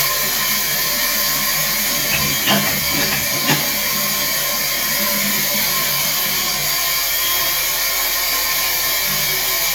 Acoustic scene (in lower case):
restroom